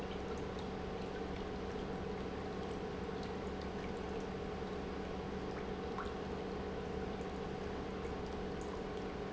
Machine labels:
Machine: pump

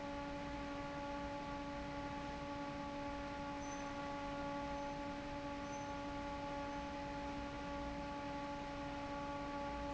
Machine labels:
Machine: fan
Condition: normal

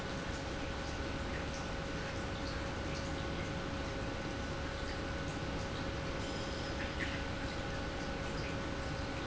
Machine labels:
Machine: pump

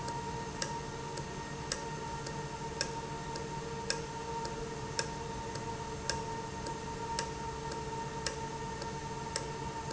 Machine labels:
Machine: valve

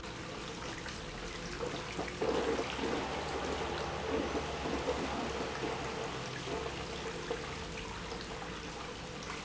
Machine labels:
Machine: pump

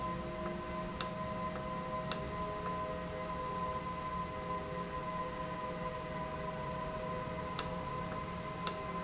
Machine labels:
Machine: valve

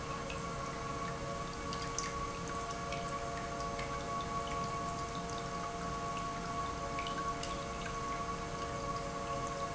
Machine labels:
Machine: pump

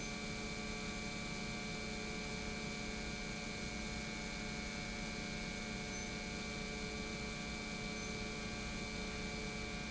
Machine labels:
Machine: pump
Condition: normal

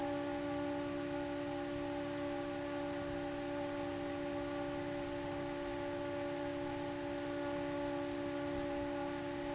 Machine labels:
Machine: fan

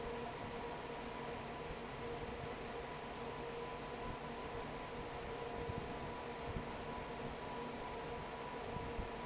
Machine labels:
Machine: fan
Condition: normal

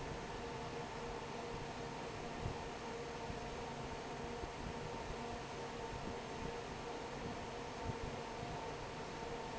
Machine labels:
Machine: fan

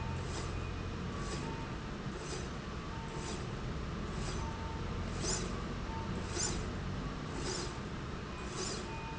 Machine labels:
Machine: slide rail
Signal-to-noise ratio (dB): -6 dB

